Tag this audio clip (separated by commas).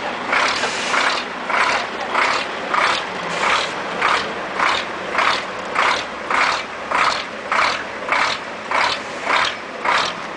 Vehicle, Truck